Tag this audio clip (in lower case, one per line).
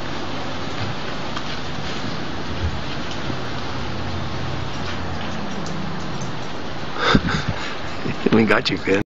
speech